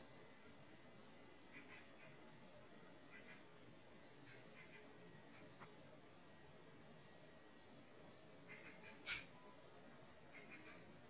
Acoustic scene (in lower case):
park